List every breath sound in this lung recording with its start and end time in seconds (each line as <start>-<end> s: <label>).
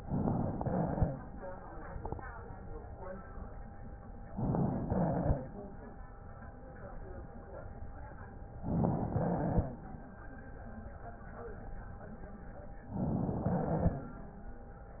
0.00-0.58 s: inhalation
0.00-0.58 s: crackles
0.60-1.17 s: exhalation
0.60-1.17 s: crackles
4.32-4.89 s: inhalation
4.32-4.89 s: crackles
4.92-5.49 s: exhalation
4.92-5.49 s: crackles
8.54-9.11 s: inhalation
8.54-9.11 s: crackles
9.13-9.77 s: exhalation
9.13-9.77 s: crackles
12.86-13.42 s: inhalation
12.86-13.42 s: crackles
13.42-14.11 s: exhalation
13.42-14.11 s: crackles